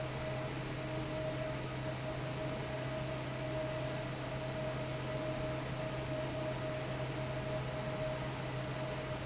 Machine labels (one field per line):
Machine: fan